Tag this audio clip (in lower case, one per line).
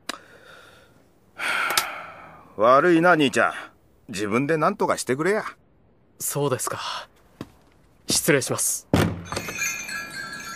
speech